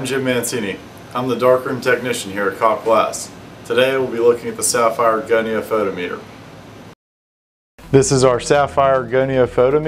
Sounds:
music, speech

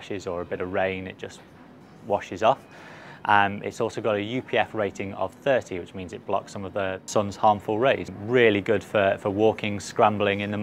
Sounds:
speech

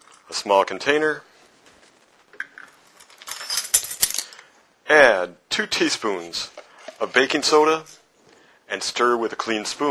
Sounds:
inside a small room, speech

